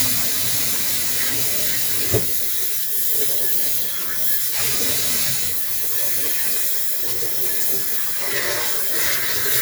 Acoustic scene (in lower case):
kitchen